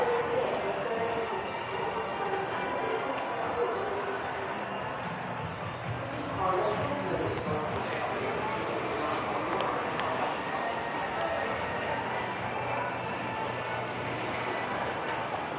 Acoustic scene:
subway station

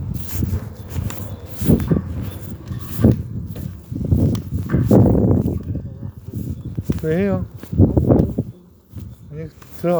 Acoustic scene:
residential area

